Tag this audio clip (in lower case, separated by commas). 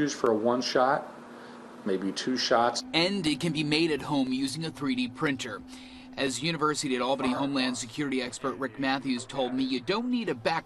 speech